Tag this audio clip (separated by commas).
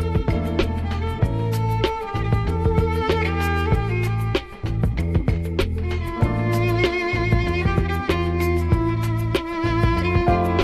Music, Musical instrument, Violin